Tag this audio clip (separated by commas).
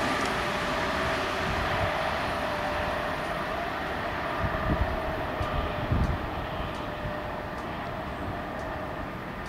Railroad car, Vehicle, Rail transport, Train